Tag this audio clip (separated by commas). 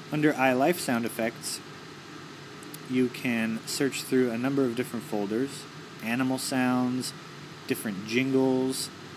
Speech